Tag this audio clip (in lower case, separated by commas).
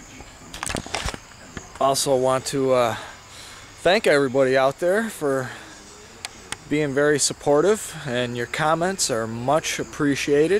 speech, outside, rural or natural